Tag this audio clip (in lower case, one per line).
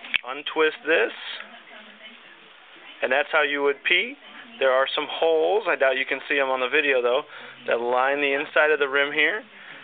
speech